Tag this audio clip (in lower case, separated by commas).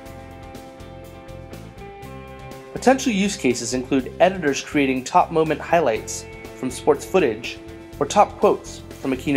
speech, music